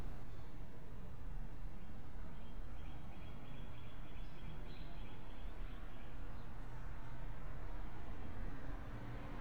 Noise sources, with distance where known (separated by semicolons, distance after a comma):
medium-sounding engine, far